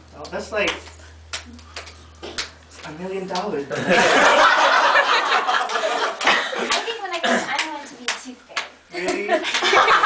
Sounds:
Speech

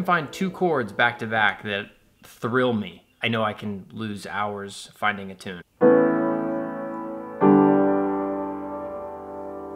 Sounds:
Speech, Music

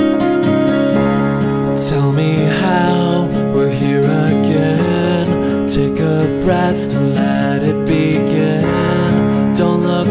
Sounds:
Tender music, Music

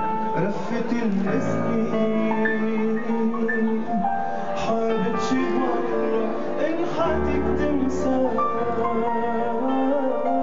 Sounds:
Music, Male singing

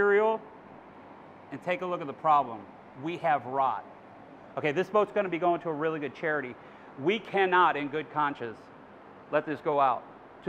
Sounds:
Speech

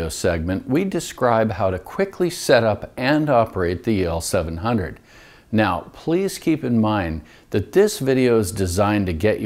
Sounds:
Speech

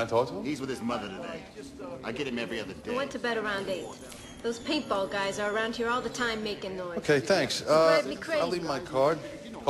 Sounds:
woman speaking

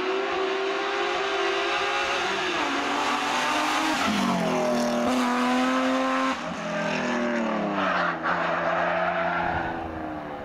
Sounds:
Car, Vehicle, Motor vehicle (road), Skidding

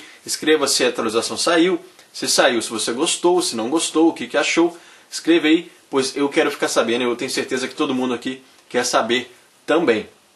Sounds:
Speech

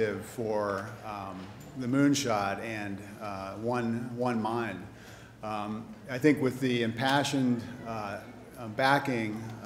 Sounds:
Speech

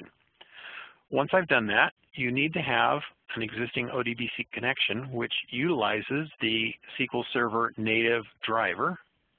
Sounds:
Speech

